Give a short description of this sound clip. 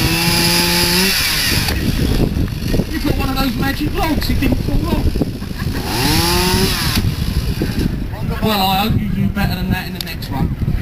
Power tool engine revving, followed by a man talking, and another tool engine rev